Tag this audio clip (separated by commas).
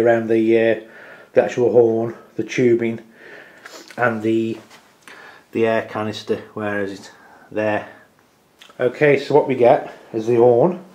inside a small room, Speech